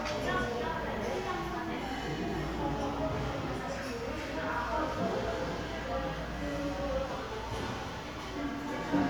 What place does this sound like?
restaurant